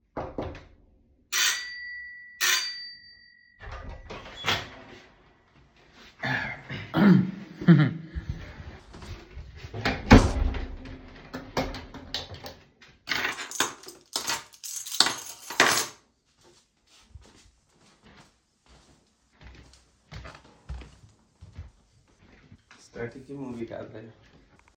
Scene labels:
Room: hallway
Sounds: bell ringing, door (more than once), keys, footsteps

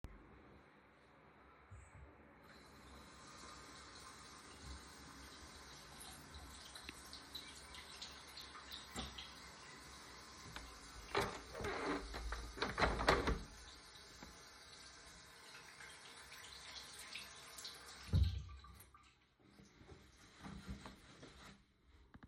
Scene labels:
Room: bathroom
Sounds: running water, window

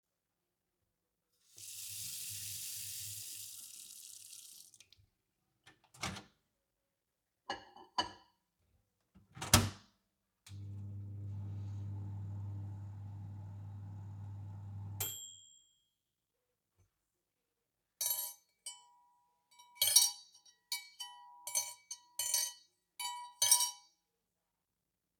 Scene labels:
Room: kitchen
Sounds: running water, microwave, cutlery and dishes

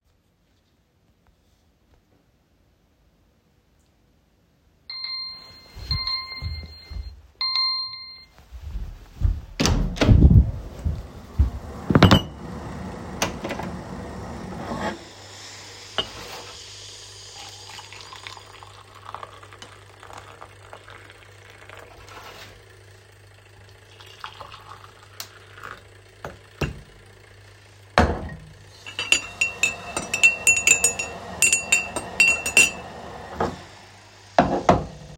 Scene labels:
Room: kitchen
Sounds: phone ringing, door, running water, cutlery and dishes

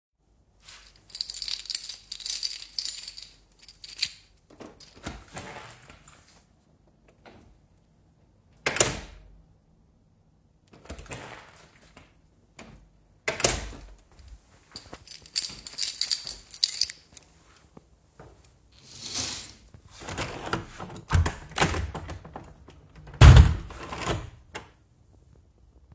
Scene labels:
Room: living room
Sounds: keys, door (more than once), window

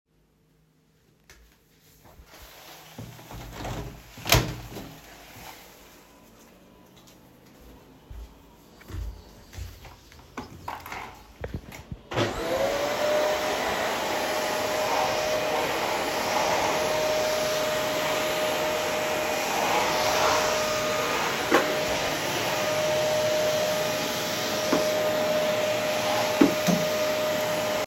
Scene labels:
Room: bedroom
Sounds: window, footsteps, vacuum cleaner

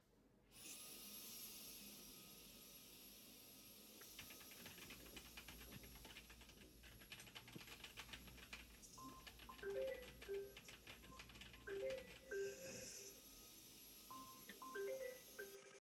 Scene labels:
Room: office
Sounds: vacuum cleaner, keyboard typing, phone ringing

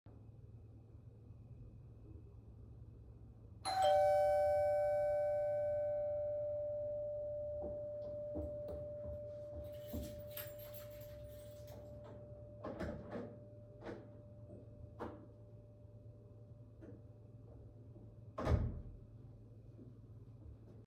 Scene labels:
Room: hallway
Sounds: bell ringing, footsteps, keys, door (more than once)

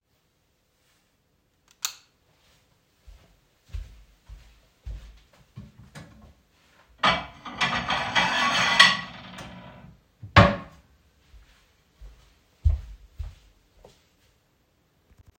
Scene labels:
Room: kitchen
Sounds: light switch, footsteps, wardrobe or drawer (more than once), cutlery and dishes

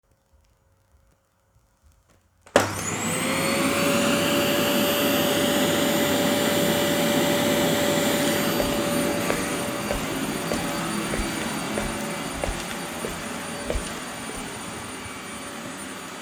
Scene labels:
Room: living room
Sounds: vacuum cleaner, footsteps

